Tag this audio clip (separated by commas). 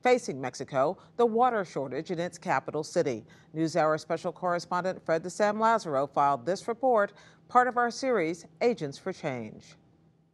Speech